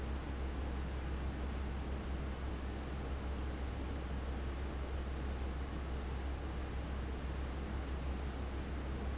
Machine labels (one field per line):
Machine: fan